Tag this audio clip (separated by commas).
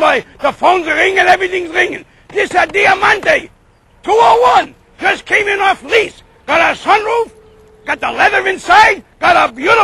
Speech